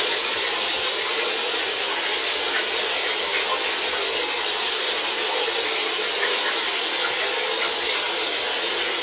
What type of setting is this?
restroom